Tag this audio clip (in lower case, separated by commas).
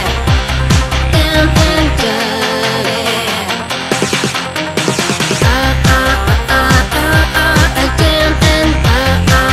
electronica, music